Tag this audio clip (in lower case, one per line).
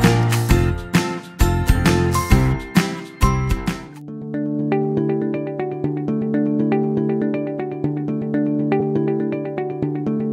music